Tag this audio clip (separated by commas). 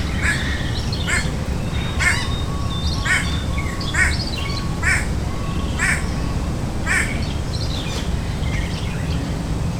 Wild animals, Animal, Bird